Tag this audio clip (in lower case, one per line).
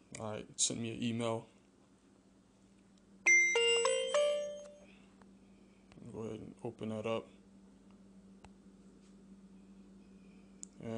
speech
inside a small room
music